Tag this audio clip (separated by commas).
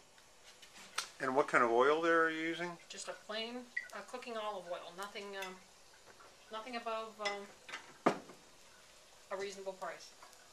Speech